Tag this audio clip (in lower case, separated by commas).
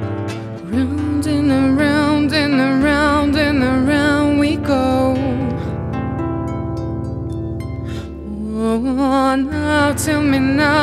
music, vocal music, singing